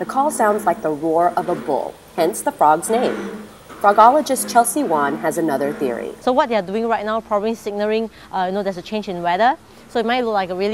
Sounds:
speech

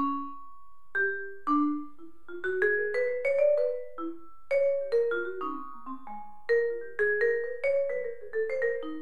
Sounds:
playing vibraphone

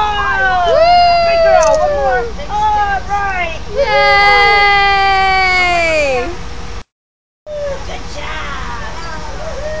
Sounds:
speech

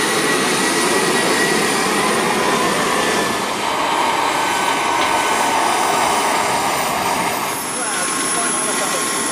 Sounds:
train
subway
rail transport
railroad car

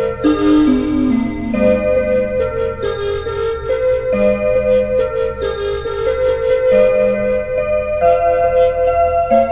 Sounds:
music

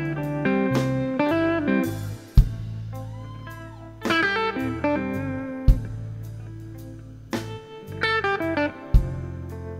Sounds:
music

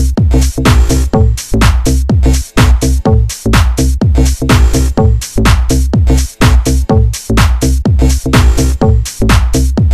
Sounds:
house music
music

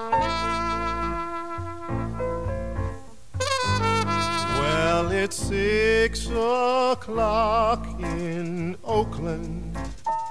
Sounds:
music
saxophone

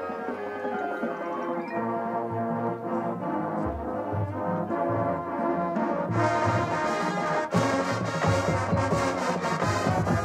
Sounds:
music
outside, urban or man-made

